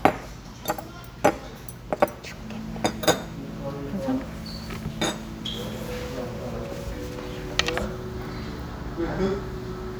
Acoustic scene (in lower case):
restaurant